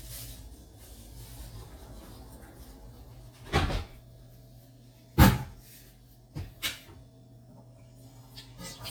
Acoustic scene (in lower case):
kitchen